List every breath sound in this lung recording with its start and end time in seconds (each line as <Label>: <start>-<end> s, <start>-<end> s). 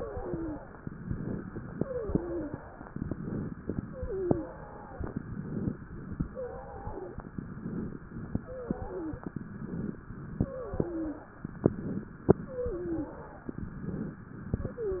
Inhalation: 0.85-1.68 s, 2.86-3.69 s, 4.93-5.76 s, 7.40-8.36 s, 9.31-10.37 s, 11.52-12.32 s, 13.49-14.30 s
Wheeze: 0.00-0.59 s, 1.69-2.60 s, 3.85-4.65 s, 6.28-7.21 s, 8.42-9.36 s, 10.38-11.31 s, 12.29-13.23 s, 14.69-15.00 s
Crackles: 0.85-1.68 s, 2.86-3.69 s, 4.93-5.76 s, 7.40-8.36 s, 9.31-10.37 s, 11.52-12.32 s, 13.49-14.30 s